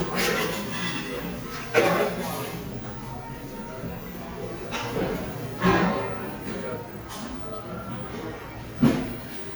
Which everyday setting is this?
cafe